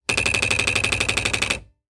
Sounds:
home sounds, Typewriter, Typing

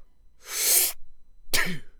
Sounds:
Respiratory sounds, Breathing

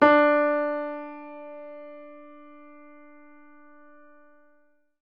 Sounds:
Music, Musical instrument, Keyboard (musical), Piano

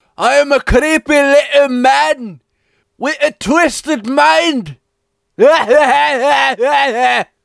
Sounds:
Yell, Laughter, Speech, Male speech, Human voice, Shout

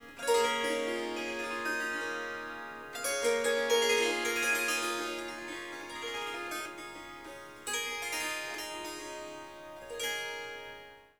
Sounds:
Harp, Music, Musical instrument

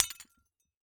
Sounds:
Shatter, Glass

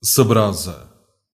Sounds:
Human voice

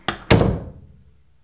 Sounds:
home sounds, Slam, Door

